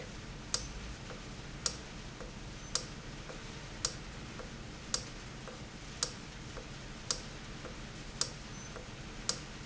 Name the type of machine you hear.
valve